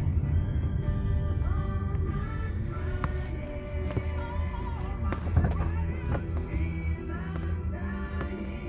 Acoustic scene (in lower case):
car